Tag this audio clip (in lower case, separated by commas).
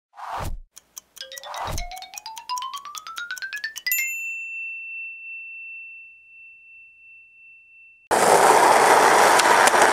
bicycle bell, skateboard, music